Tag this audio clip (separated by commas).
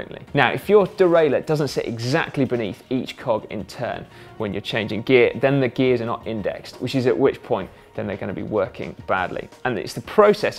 Speech, Music